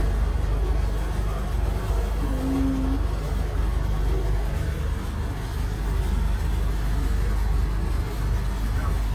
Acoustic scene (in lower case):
bus